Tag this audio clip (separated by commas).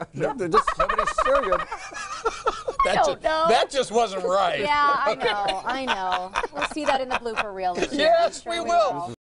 Speech